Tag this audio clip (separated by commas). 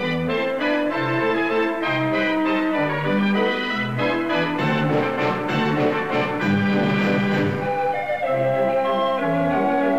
Music